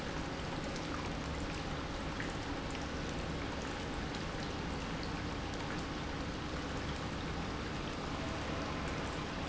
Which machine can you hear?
pump